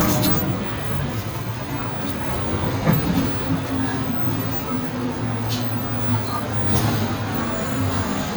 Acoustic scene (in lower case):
bus